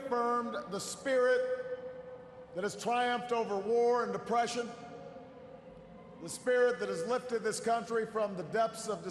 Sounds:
Speech, man speaking, Narration

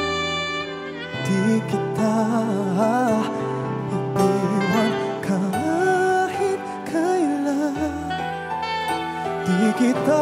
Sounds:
Singing, Music

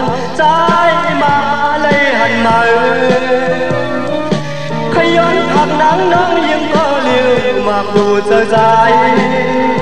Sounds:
Music

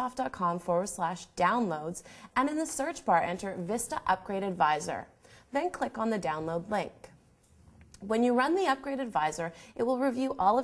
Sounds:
Speech

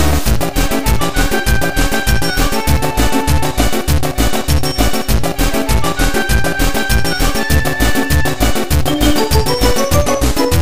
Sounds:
Music

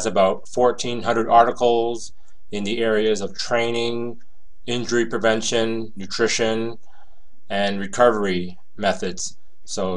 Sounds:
Speech

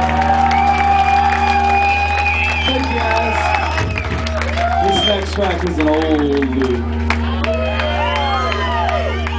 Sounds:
Speech

